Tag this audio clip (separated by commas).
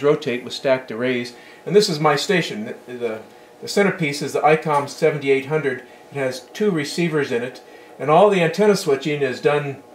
Speech